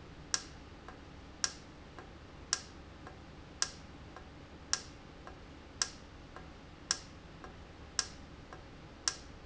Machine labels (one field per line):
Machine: valve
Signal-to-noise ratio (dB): 6 dB